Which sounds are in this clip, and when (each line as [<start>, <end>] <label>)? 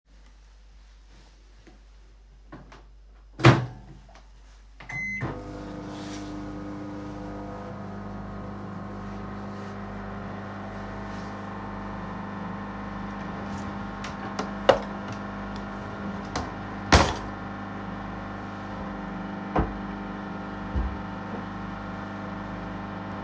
[3.37, 23.23] microwave
[13.33, 15.05] wardrobe or drawer
[19.32, 20.06] wardrobe or drawer